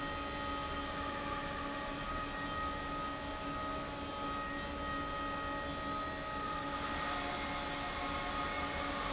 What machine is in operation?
fan